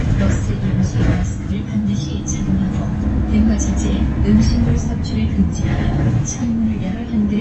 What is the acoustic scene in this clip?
bus